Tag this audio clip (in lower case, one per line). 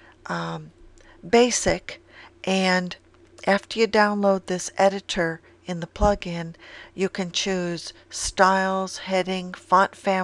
speech